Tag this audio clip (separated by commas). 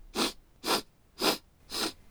Respiratory sounds